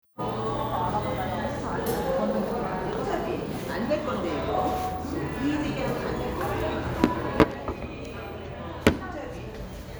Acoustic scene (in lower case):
cafe